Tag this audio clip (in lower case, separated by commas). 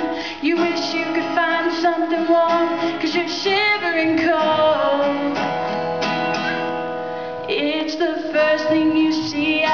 strum, music, musical instrument, guitar, plucked string instrument